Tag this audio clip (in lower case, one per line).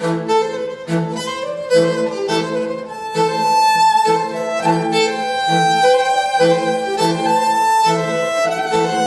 musical instrument
fiddle
music